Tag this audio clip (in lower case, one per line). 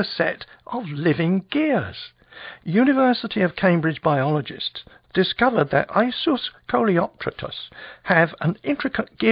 speech